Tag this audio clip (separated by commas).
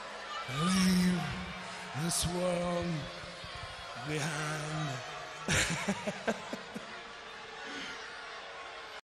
Speech